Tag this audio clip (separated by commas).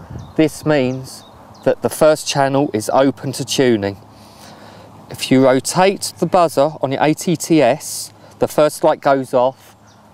Speech